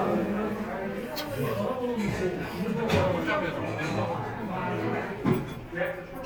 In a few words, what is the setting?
crowded indoor space